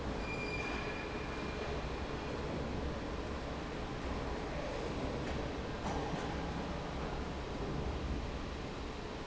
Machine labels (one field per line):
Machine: fan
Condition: normal